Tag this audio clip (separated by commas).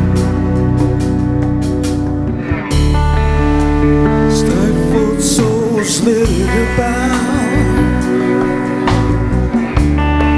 Musical instrument, Guitar, Music